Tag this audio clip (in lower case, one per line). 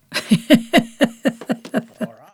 laughter
human voice
giggle